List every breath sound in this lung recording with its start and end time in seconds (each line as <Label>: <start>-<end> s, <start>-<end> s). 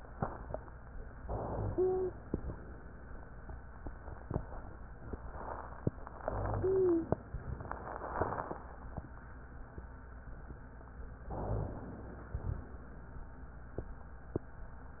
Inhalation: 1.12-2.22 s, 6.22-7.32 s, 11.22-12.32 s
Exhalation: 7.30-8.18 s, 12.32-13.20 s
Wheeze: 1.70-2.14 s, 6.60-7.14 s
Rhonchi: 1.22-1.66 s, 6.26-6.70 s, 11.26-11.80 s